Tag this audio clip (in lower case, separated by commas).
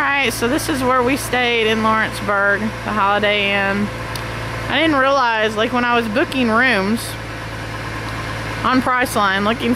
speech, vacuum cleaner